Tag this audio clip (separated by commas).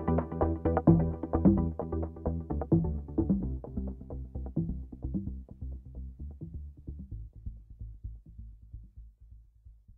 Music